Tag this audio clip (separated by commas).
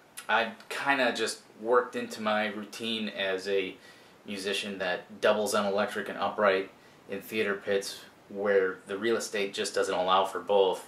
Speech